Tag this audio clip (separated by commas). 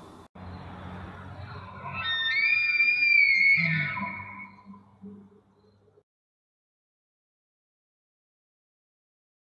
elk bugling